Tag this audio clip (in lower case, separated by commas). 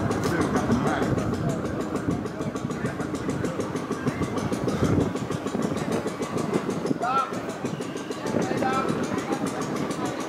wind noise (microphone), wind